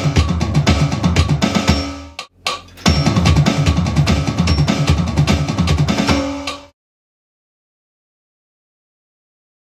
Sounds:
music

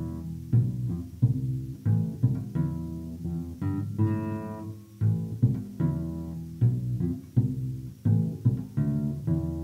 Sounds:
music, musical instrument

